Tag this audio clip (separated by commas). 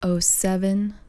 Female speech, Human voice, Speech